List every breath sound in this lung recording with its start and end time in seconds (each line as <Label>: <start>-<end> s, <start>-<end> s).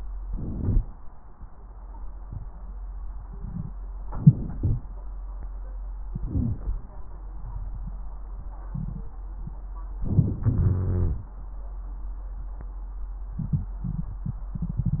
Inhalation: 0.21-0.81 s, 4.10-4.59 s, 10.04-10.37 s
Exhalation: 4.57-4.90 s, 10.43-11.21 s
Wheeze: 6.26-6.59 s, 10.43-11.21 s
Crackles: 10.04-10.37 s